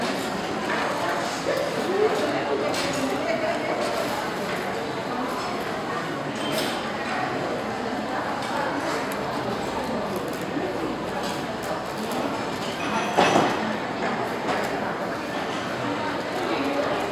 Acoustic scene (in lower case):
restaurant